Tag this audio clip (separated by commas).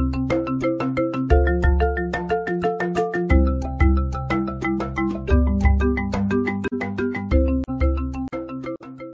Music